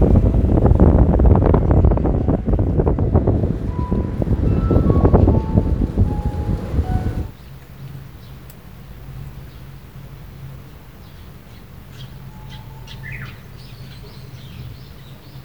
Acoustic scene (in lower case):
park